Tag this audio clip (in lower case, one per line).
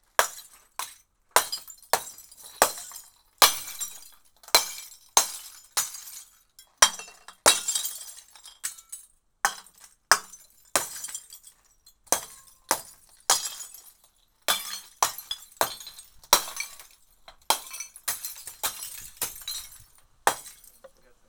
glass
shatter